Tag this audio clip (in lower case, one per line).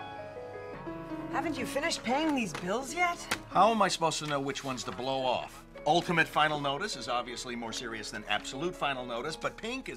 music
speech